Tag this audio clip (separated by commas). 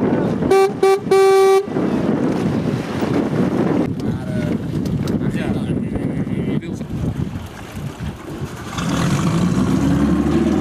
kayak, Water vehicle, Vehicle, Motorboat, Speech